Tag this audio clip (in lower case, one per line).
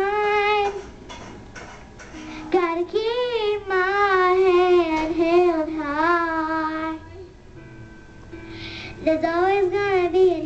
female singing
music
child singing